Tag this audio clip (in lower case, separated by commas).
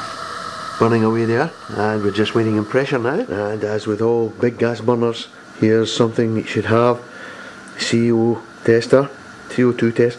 speech